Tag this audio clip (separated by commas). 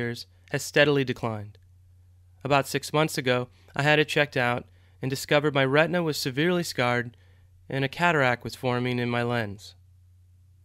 Speech